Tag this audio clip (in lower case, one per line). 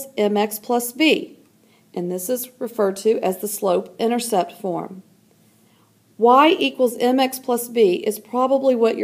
speech